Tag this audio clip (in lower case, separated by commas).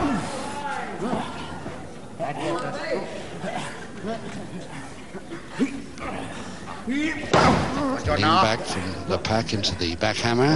speech, inside a large room or hall